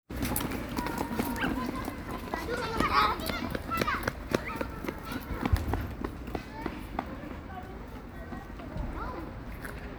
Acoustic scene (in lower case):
park